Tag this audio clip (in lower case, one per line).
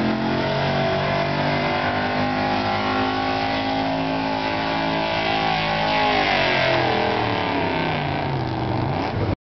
vehicle